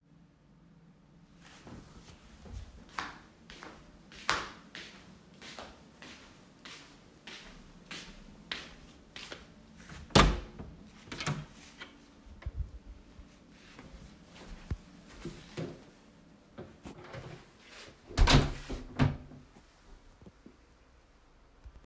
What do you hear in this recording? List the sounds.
footsteps, window, door